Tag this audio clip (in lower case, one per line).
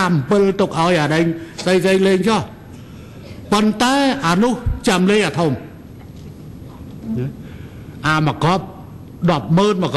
monologue
male speech
speech